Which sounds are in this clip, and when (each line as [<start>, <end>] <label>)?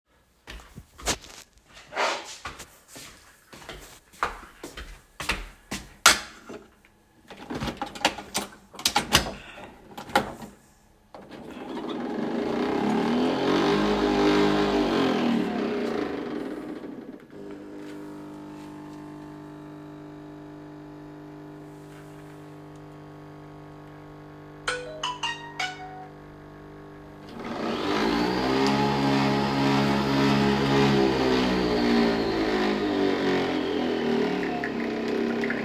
[0.05, 6.84] footsteps
[11.22, 35.65] coffee machine
[24.53, 26.34] phone ringing